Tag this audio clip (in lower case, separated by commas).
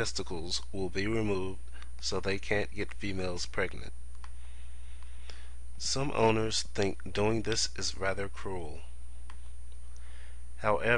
speech